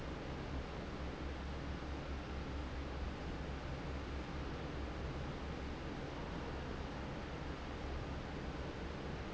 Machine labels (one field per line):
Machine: fan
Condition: normal